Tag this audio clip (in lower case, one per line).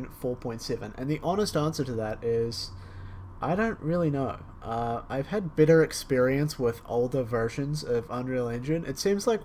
speech